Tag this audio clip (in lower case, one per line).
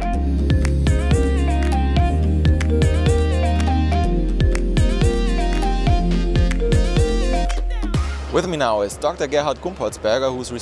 music
speech